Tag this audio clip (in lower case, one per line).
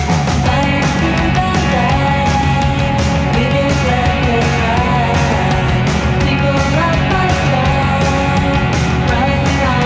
music